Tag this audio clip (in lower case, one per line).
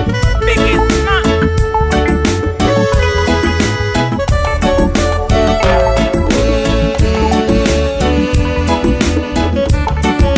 blues
music
soundtrack music